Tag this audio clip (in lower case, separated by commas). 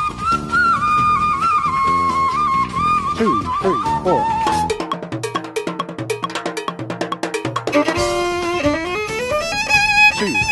music, inside a large room or hall, speech